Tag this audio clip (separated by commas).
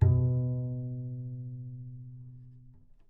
Music, Bowed string instrument, Musical instrument